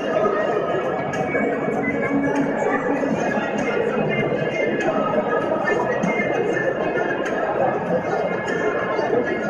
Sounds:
music
speech
inside a public space

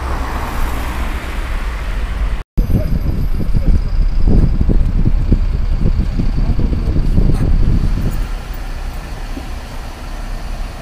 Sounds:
driving buses
bus
vehicle

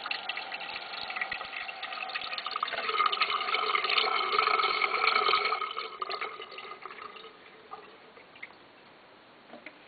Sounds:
toilet flush

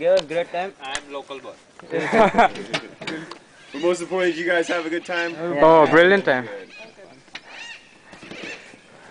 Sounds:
speech

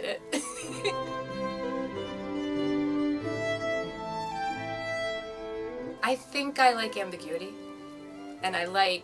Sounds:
music
speech
bowed string instrument
fiddle

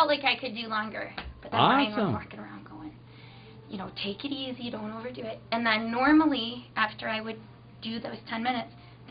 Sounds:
speech

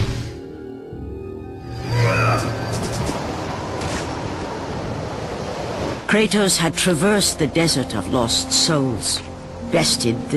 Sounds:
speech
music

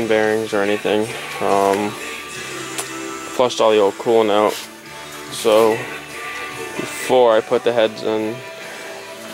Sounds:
speech
music

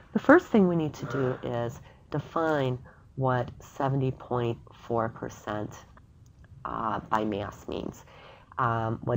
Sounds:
speech

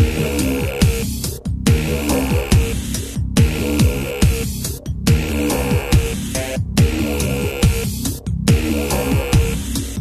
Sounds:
music
video game music

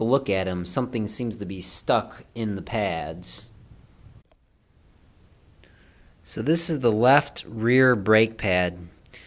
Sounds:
speech

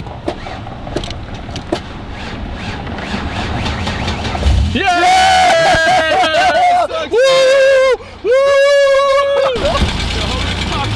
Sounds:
vehicle
car
speech

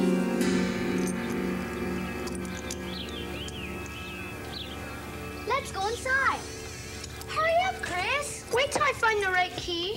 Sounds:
music
inside a small room
speech

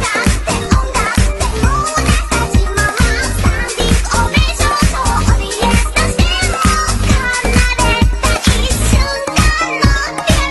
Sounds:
music

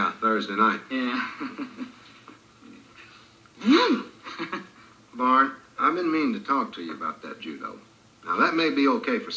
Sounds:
speech

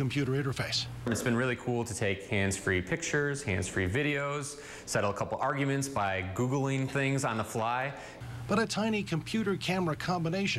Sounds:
speech

